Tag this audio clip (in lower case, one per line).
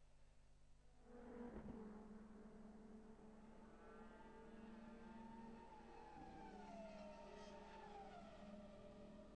vehicle